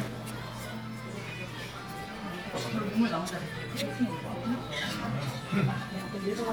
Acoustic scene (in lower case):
crowded indoor space